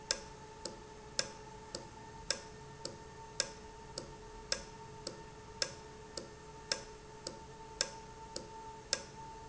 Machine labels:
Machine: valve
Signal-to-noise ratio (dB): 6 dB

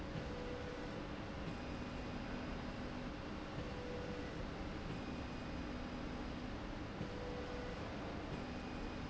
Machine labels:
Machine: slide rail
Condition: normal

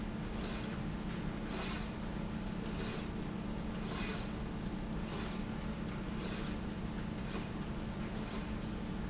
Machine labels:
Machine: slide rail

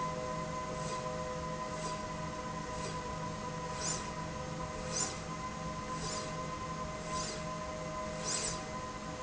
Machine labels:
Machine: slide rail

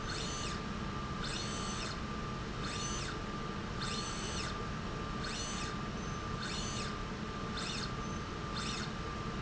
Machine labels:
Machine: slide rail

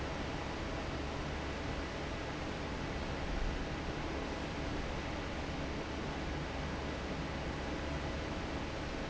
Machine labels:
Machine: fan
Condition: normal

